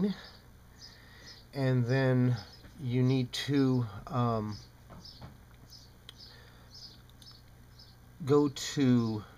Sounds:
Speech, man speaking, monologue

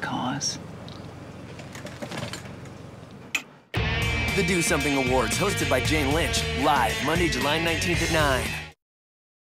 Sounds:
Speech, Music

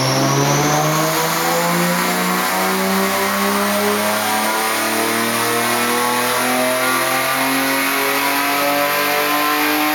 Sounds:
Vehicle, Car

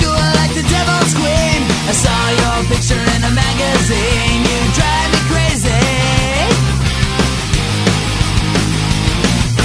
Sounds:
Music

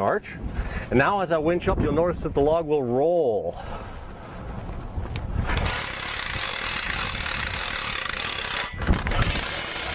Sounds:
Speech

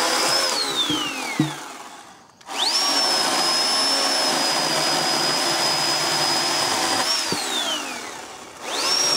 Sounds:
Chainsaw, Tools

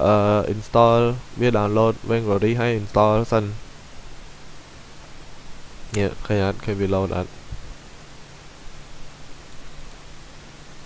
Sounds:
Speech

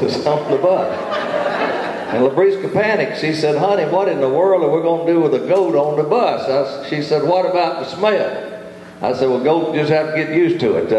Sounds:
Speech

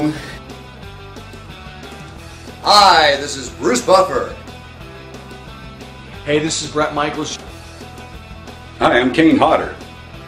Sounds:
Speech, Music

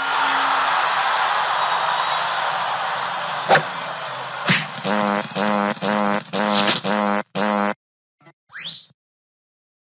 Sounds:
thwack

